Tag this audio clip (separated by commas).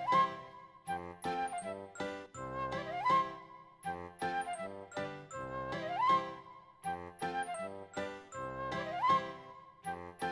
Music